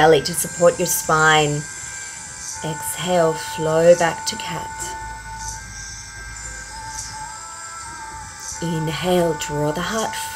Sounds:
speech
music

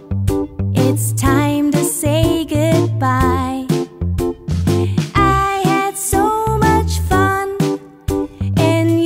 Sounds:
child singing

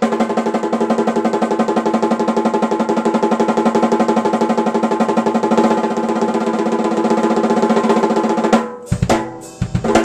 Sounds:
music
musical instrument
drum kit
drum

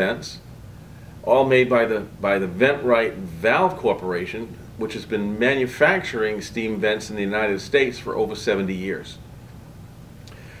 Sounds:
speech

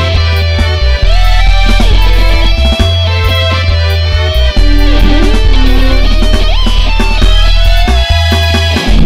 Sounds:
music

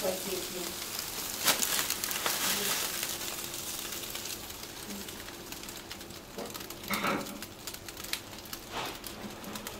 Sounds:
speech

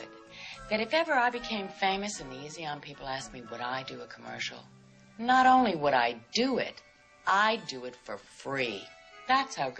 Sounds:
music
speech

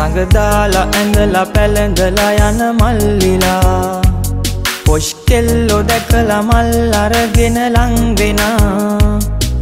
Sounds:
music

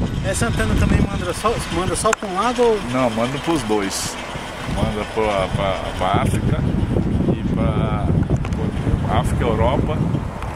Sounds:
speech

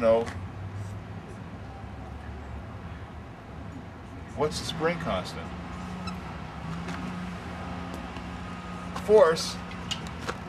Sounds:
speech

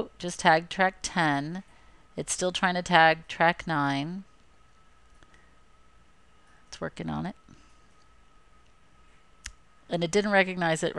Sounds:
speech

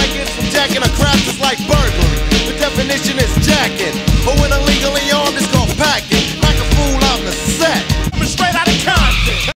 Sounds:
music

